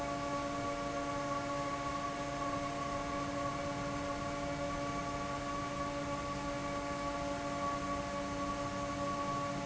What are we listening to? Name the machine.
fan